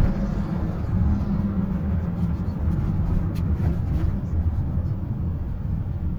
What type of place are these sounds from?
car